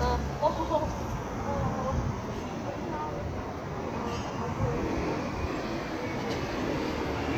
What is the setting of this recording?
street